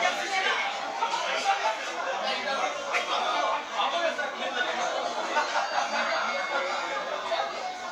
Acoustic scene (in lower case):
restaurant